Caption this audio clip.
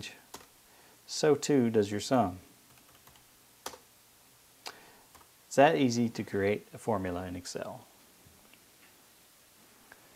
A person is typing on the computer and talking in a low voice